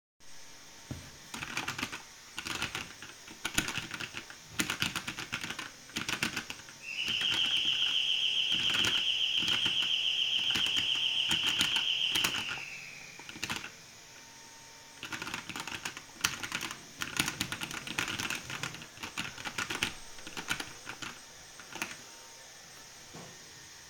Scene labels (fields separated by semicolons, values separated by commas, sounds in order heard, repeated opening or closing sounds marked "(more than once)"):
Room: office; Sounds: vacuum cleaner, keyboard typing, bell ringing